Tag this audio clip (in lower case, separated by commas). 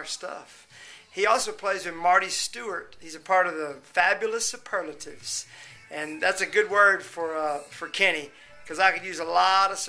music, speech